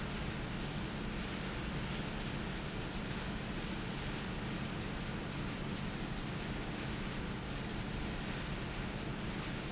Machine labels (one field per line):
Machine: fan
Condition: abnormal